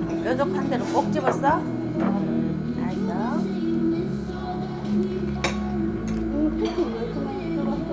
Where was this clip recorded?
in a restaurant